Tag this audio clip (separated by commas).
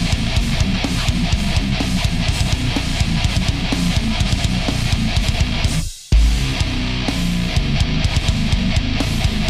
Music